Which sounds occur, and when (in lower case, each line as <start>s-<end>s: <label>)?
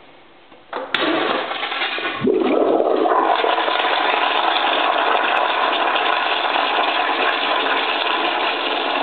0.0s-0.7s: mechanisms
0.4s-9.0s: toilet flush